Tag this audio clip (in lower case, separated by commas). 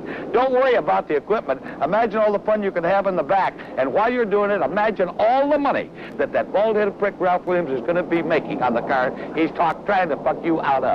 speech